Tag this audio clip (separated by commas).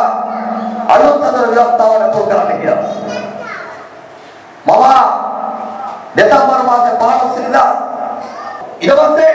kid speaking, Male speech, Speech